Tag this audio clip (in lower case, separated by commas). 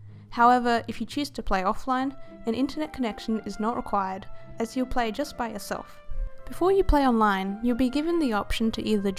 music, speech